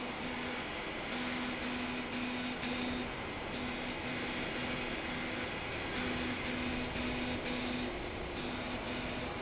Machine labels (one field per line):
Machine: slide rail